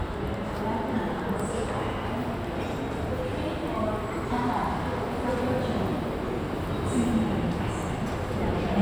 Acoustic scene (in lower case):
subway station